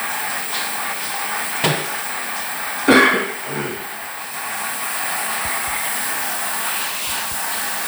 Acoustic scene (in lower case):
restroom